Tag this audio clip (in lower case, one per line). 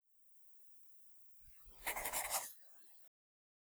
writing
domestic sounds